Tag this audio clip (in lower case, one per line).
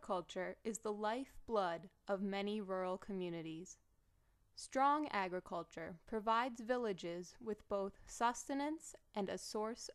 speech